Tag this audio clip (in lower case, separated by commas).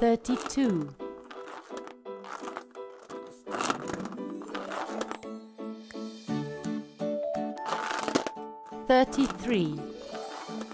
speech, music for children, music